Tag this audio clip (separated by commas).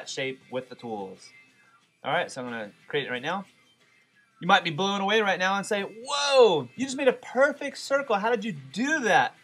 Speech, Music